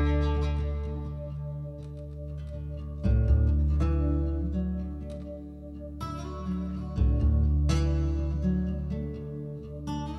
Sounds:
Music

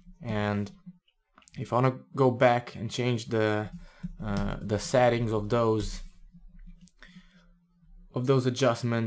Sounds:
Speech, inside a small room

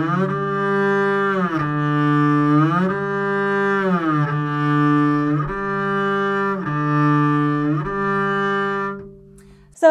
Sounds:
playing double bass

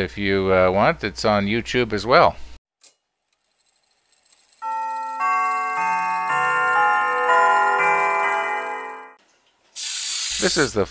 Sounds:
Speech, Music

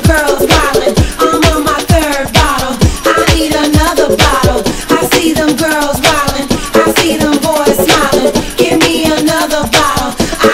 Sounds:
Music

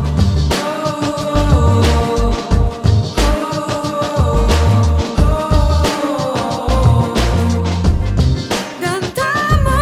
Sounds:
Music

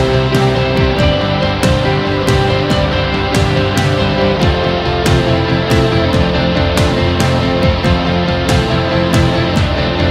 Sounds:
Music

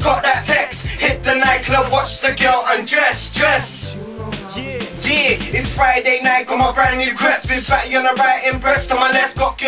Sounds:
Music

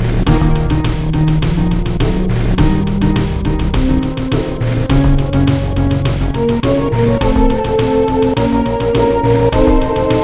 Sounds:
Music, Theme music

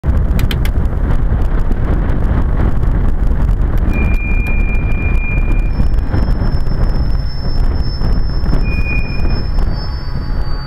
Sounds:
train wheels squealing

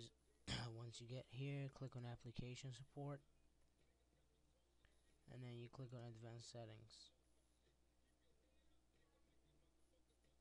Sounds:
Speech

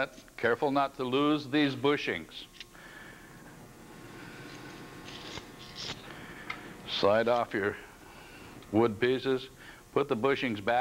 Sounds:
Speech

